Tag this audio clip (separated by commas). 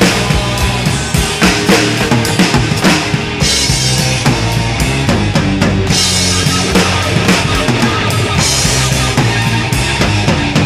Snare drum, playing drum kit, Drum kit, Rimshot, Bass drum, Percussion, Drum